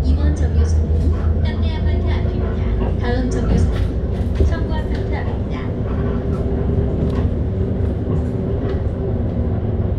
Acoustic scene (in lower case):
bus